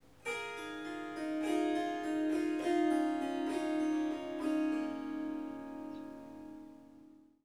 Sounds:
musical instrument, music, harp

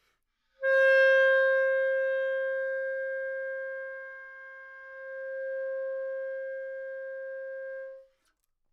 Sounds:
music, musical instrument, wind instrument

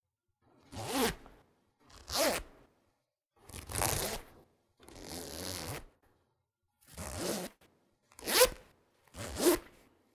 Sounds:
domestic sounds, zipper (clothing)

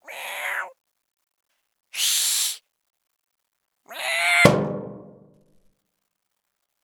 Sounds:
animal, meow, cat, pets, hiss

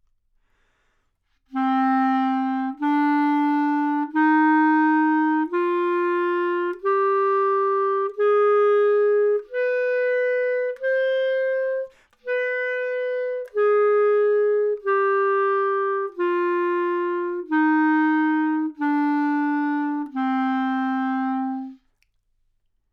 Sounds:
musical instrument, music, woodwind instrument

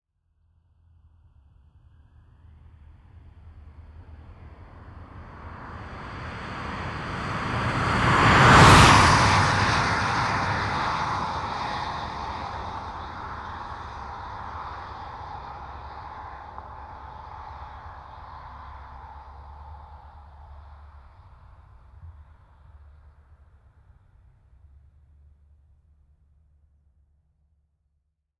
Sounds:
vehicle, car, motor vehicle (road), car passing by

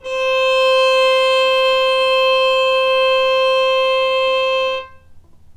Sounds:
music, musical instrument, bowed string instrument

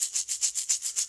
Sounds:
musical instrument, music, rattle (instrument), percussion

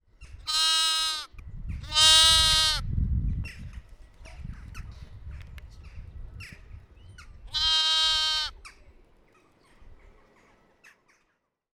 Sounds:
animal, livestock

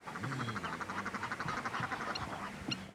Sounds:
animal, bird, wild animals

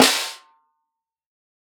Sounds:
percussion, snare drum, musical instrument, music, drum

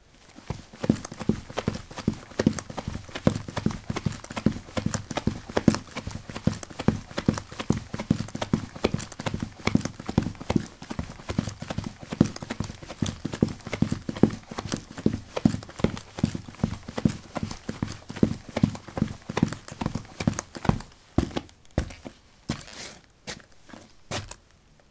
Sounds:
run

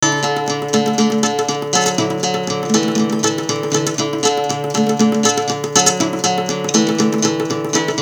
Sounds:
guitar, acoustic guitar, musical instrument, plucked string instrument, music

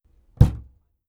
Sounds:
door, home sounds, knock

